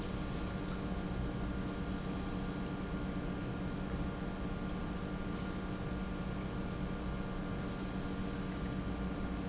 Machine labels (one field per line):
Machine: pump